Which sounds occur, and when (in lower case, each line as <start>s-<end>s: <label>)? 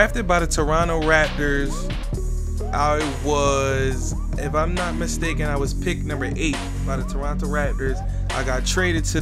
0.0s-2.0s: male speech
0.0s-9.2s: music
2.7s-4.0s: male speech
4.3s-7.9s: male speech
8.3s-9.2s: male speech